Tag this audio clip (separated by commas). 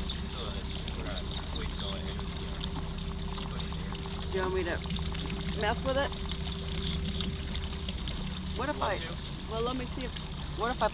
Speech, Vehicle, Water vehicle